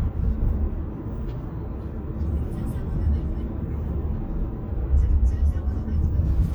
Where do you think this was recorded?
in a car